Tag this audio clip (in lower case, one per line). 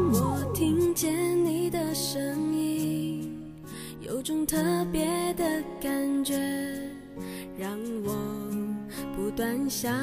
music